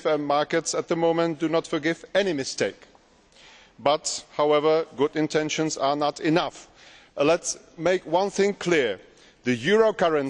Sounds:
man speaking, Speech, Narration

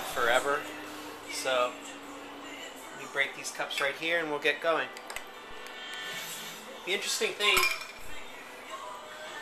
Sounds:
Speech, Music

